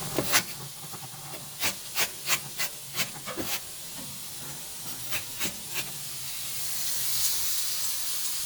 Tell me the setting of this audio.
kitchen